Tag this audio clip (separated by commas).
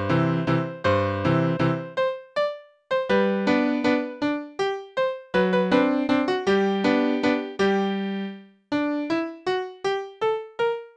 Tender music, Music